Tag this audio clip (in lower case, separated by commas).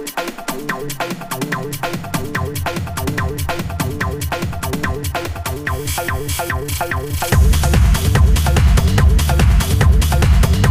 house music, music, electronic music, techno